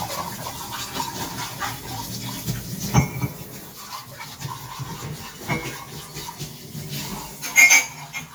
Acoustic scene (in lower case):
kitchen